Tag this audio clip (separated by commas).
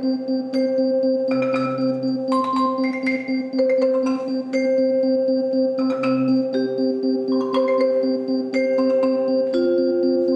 Classical music, Percussion, Music, Orchestra, Musical instrument, xylophone, Vibraphone